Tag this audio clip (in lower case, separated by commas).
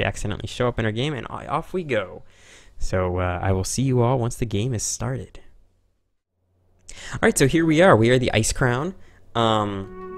music, speech